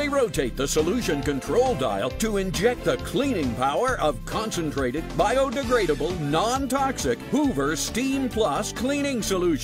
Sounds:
Music, Speech

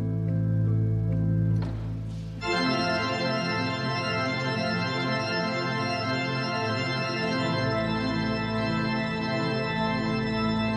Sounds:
playing electronic organ

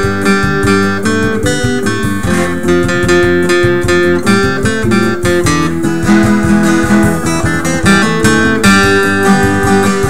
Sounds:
Music

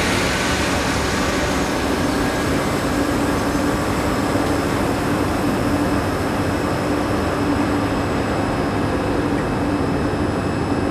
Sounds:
Vehicle

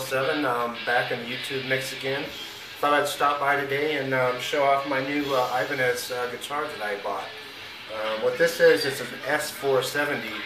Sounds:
Music, Musical instrument, Speech, Guitar

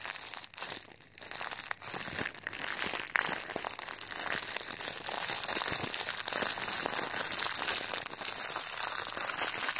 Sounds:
crinkling

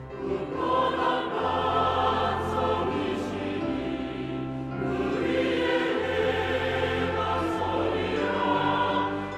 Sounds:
Choir, Music

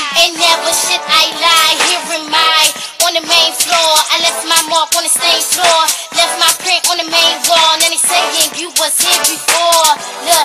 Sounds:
Music

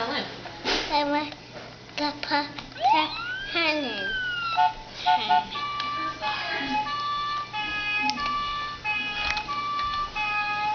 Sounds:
Police car (siren), Speech

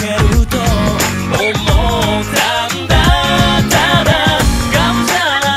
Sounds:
Music

